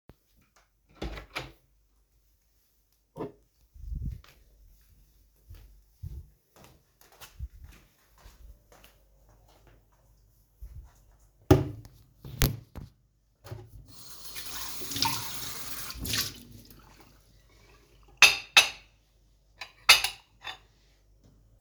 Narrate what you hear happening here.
I opened the door, took my coffee mug and went to the kitchen. Then I placed the mug in the sink, left my phone beside the sink and rinsed the mug. Finally, I left the mug on the drying rack.